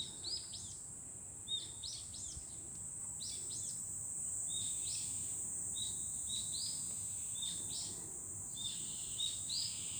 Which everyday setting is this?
park